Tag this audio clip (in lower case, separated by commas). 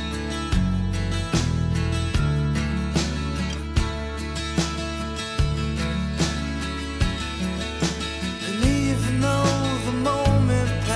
music, guitar, acoustic guitar, musical instrument, plucked string instrument